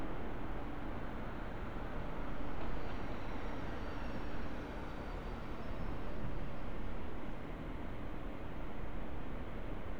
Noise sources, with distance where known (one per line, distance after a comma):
background noise